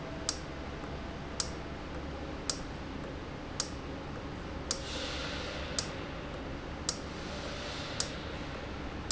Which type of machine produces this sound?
valve